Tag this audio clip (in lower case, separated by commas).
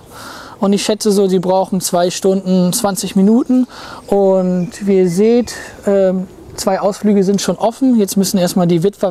outside, urban or man-made, bird, speech